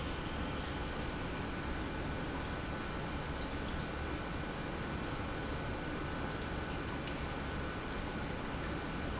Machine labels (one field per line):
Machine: pump